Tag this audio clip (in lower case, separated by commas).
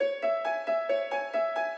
piano, keyboard (musical), music, musical instrument